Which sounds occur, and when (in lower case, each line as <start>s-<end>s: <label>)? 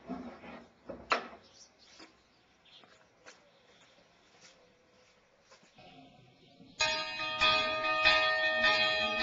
0.0s-0.6s: surface contact
0.0s-9.2s: wind
0.9s-1.0s: generic impact sounds
1.1s-1.3s: generic impact sounds
1.4s-1.7s: tweet
1.8s-2.1s: tweet
2.0s-2.1s: footsteps
2.2s-2.5s: tweet
2.6s-2.9s: tweet
2.7s-4.0s: bird call
2.8s-3.0s: footsteps
3.2s-3.4s: footsteps
3.4s-4.0s: tweet
3.7s-3.9s: footsteps
4.3s-5.6s: bird call
4.3s-4.5s: footsteps
4.9s-5.1s: footsteps
5.5s-5.7s: footsteps
5.5s-5.7s: generic impact sounds
5.8s-6.8s: tweet
6.8s-9.2s: church bell
7.4s-7.8s: human voice
8.6s-9.2s: human voice